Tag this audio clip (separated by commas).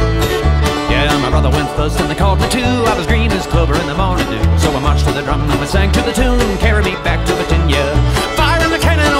Music